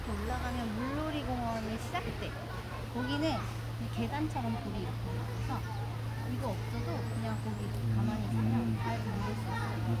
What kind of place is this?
park